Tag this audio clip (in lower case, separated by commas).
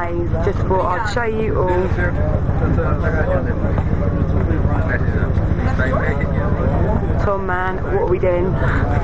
speech, vehicle